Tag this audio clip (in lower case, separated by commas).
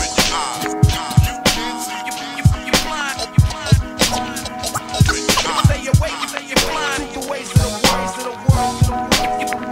hip hop music, music